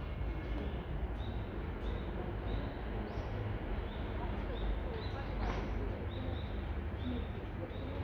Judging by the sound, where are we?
in a residential area